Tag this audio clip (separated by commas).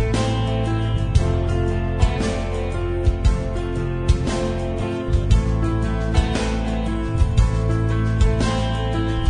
Music